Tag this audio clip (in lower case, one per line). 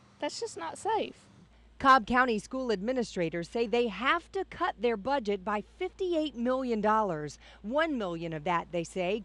speech